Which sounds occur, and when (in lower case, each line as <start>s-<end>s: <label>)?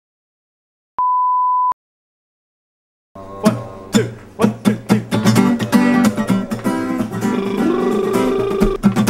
0.9s-1.7s: busy signal
3.1s-5.3s: male singing
3.1s-9.0s: music
7.1s-8.7s: male singing